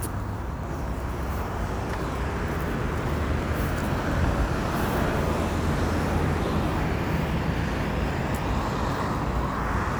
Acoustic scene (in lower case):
street